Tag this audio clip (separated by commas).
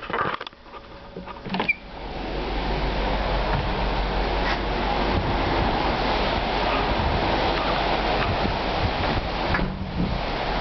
Wind noise (microphone)